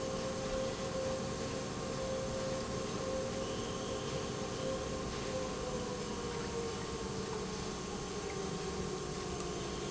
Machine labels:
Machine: pump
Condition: normal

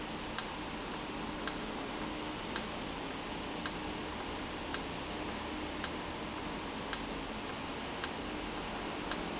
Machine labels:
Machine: valve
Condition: normal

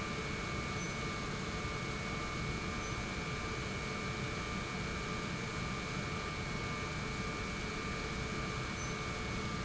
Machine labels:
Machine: pump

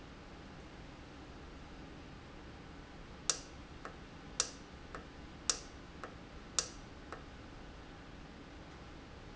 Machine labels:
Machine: valve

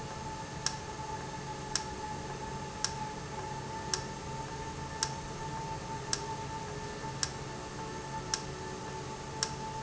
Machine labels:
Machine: valve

